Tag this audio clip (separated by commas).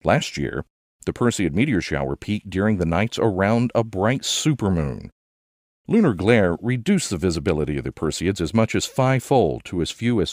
Speech